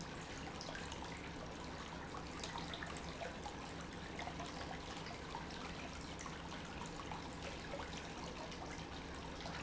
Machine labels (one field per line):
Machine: pump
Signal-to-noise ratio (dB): 6 dB